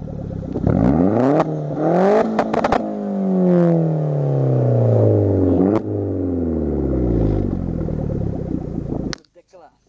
A car is revving repeatedly